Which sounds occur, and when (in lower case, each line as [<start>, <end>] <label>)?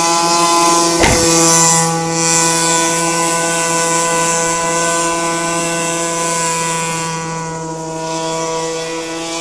[0.00, 9.40] speedboat
[0.92, 1.18] generic impact sounds